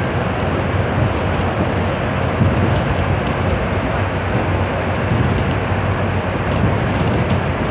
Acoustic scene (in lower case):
bus